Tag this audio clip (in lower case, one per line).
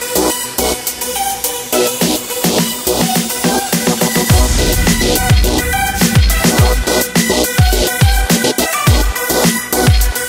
music